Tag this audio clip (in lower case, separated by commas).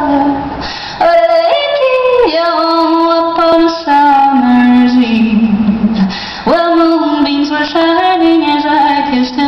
music, yodeling